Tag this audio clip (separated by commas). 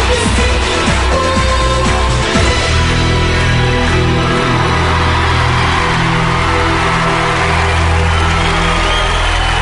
Music